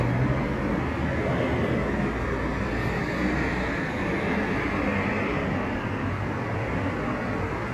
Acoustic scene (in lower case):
street